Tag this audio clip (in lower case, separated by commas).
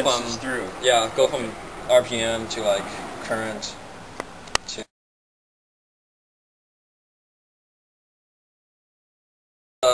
speech